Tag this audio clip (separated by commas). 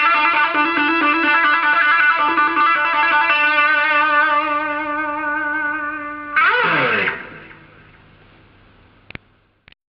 Music